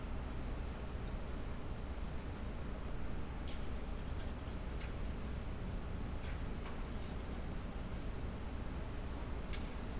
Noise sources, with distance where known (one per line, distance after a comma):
background noise